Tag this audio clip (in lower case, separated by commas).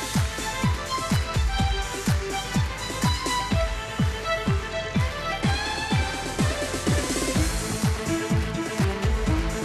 musical instrument, music, fiddle